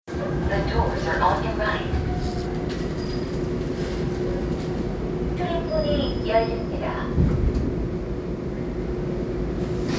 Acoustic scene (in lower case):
subway train